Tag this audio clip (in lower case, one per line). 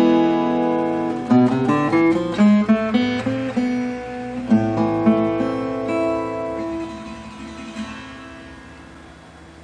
acoustic guitar
plucked string instrument
musical instrument
music
guitar